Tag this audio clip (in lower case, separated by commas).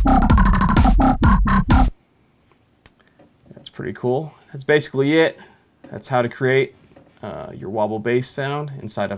sound effect